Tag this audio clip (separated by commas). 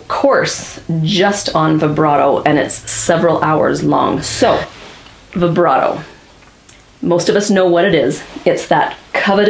Speech